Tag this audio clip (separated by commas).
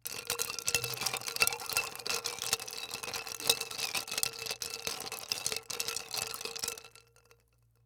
Glass